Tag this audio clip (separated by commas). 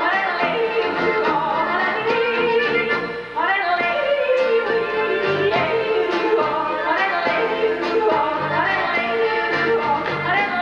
yodelling